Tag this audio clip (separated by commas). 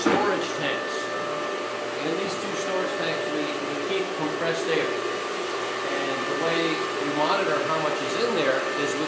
inside a small room, Speech